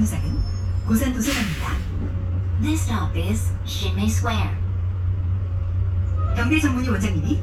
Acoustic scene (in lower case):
bus